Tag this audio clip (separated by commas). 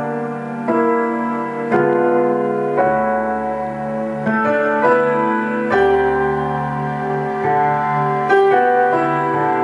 Music